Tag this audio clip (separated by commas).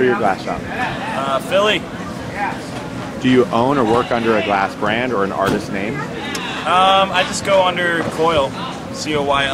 Speech